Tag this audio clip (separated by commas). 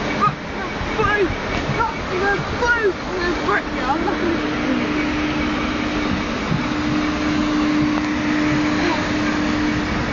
Speech